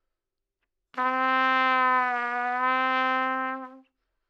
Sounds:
brass instrument
musical instrument
trumpet
music

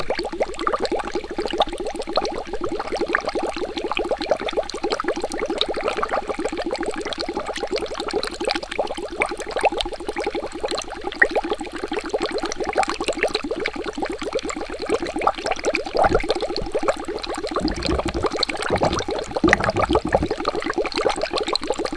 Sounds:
stream
water

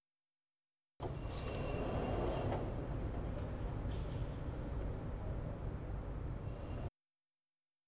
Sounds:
domestic sounds
door
sliding door

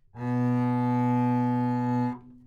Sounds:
bowed string instrument
music
musical instrument

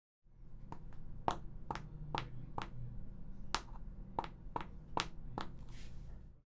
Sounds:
footsteps

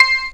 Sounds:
musical instrument
keyboard (musical)
music

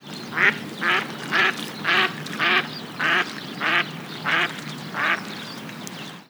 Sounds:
wild animals
bird
animal

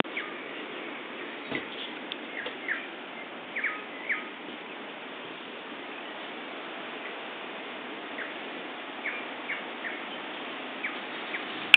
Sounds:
bird
animal
wild animals
bird vocalization

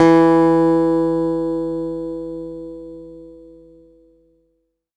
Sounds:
music
acoustic guitar
guitar
musical instrument
plucked string instrument

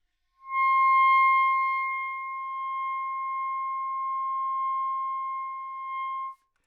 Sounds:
musical instrument
wind instrument
music

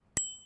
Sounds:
bell
bicycle
vehicle
alarm
bicycle bell

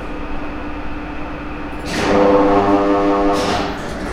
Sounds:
mechanisms

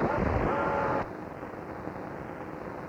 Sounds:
mechanisms

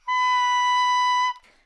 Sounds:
musical instrument
music
woodwind instrument

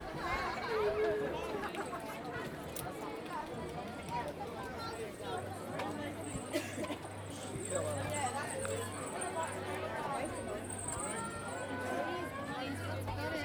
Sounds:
crowd
human group actions

